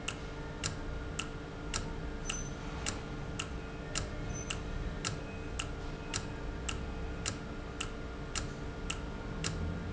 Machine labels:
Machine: valve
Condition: normal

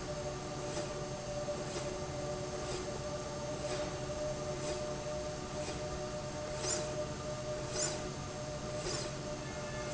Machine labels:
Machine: slide rail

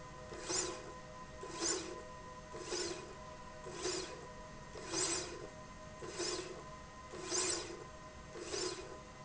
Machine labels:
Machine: slide rail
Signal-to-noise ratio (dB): 6 dB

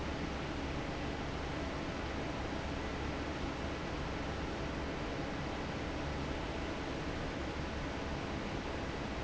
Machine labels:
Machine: fan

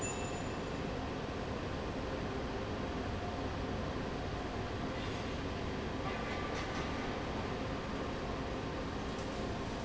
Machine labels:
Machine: fan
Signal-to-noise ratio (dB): -6 dB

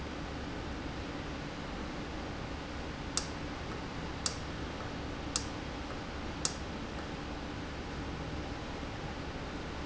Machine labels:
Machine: valve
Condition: normal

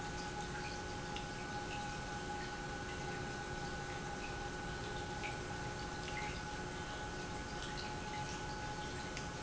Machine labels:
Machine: pump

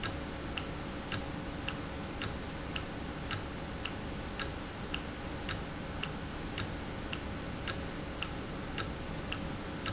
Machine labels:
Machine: valve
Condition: normal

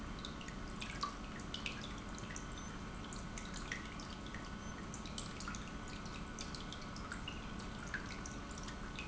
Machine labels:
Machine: pump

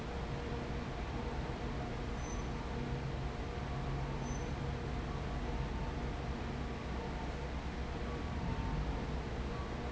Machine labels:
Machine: fan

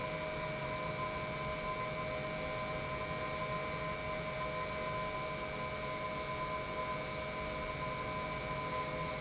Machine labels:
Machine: pump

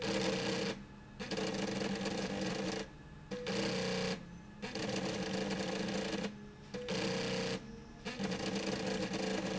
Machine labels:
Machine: slide rail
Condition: abnormal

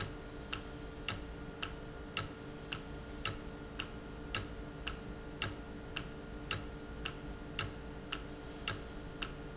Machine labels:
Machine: valve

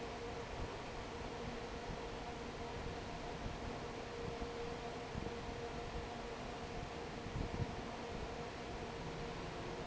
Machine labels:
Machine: fan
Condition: normal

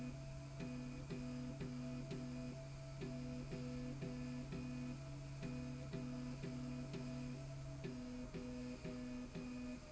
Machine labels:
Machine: slide rail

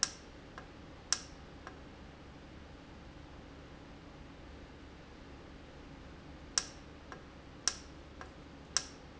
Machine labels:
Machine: valve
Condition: normal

